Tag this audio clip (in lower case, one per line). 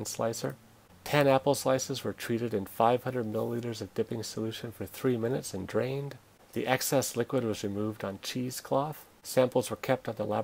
speech